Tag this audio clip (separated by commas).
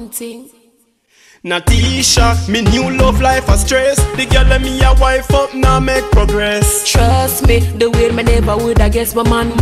Speech, Funk, Music